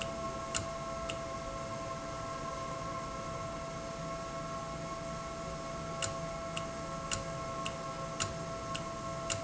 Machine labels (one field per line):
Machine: valve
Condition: normal